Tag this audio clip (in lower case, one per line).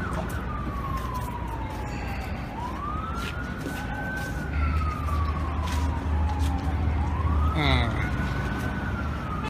vehicle
emergency vehicle
outside, urban or man-made
speech
police car (siren)
car